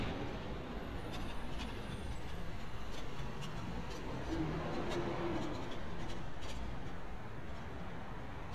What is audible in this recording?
large-sounding engine, non-machinery impact